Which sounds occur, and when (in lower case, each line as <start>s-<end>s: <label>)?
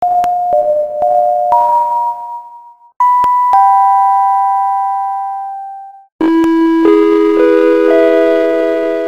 0.0s-9.0s: background noise
3.0s-6.1s: ding-dong
6.2s-9.0s: music
6.4s-6.5s: generic impact sounds